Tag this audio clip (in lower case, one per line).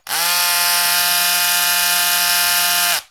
tools